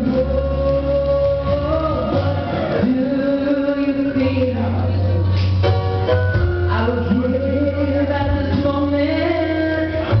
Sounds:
music, male singing

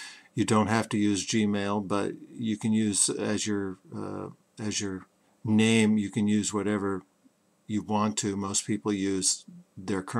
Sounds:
speech

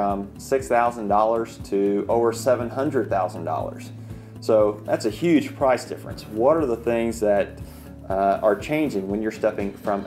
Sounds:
music, speech

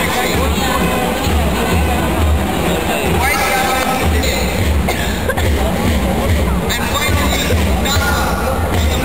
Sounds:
speech, music

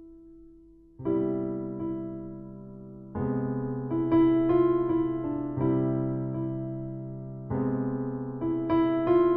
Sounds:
electric piano, music

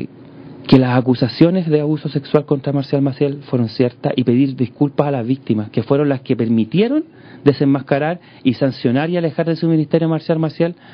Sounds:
speech

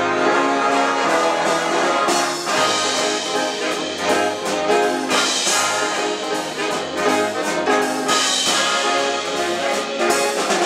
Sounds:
swing music, music

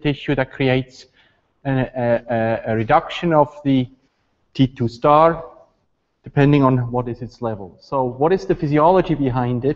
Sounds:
speech

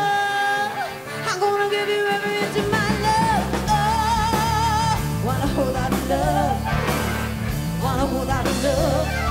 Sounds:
music

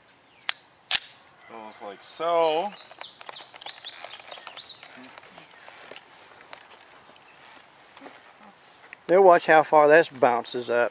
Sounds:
speech, bird

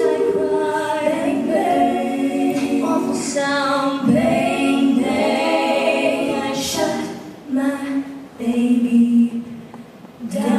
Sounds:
a capella, music

